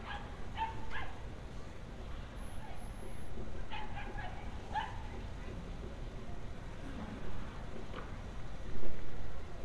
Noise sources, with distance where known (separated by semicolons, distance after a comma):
dog barking or whining